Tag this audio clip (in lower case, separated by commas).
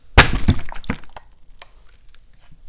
liquid, splash